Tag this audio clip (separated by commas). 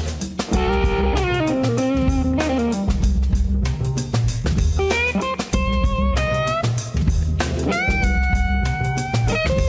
Guitar, Music